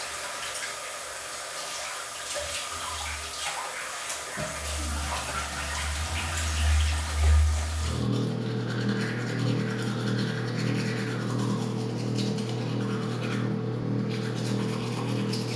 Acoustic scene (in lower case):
restroom